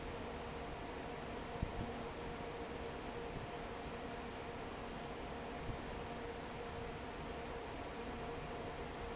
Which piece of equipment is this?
fan